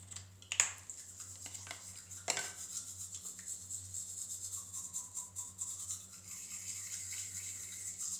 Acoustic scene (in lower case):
restroom